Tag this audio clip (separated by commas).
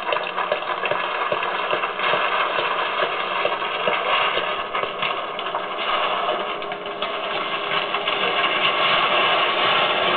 Vehicle